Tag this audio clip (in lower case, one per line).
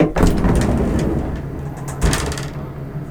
sliding door
door
train
vehicle
rail transport
domestic sounds